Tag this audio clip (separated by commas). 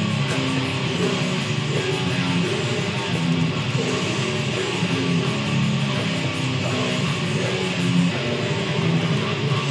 Guitar, Music, Musical instrument, Electric guitar